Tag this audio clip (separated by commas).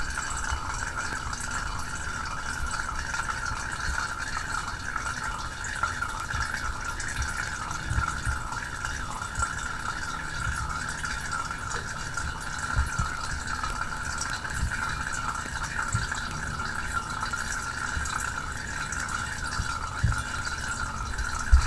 Vehicle, Liquid, Trickle, Motor vehicle (road), roadway noise, Pour